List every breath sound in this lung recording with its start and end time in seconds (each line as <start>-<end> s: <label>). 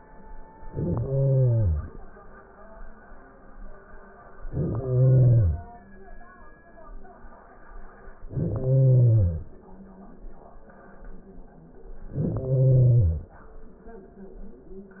0.61-2.11 s: inhalation
4.29-5.79 s: inhalation
8.13-9.51 s: inhalation
12.02-13.33 s: inhalation